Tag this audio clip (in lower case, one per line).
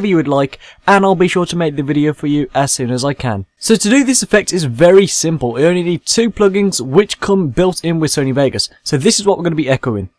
speech synthesizer
speech